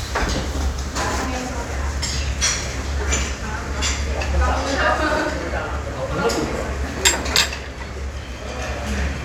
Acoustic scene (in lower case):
crowded indoor space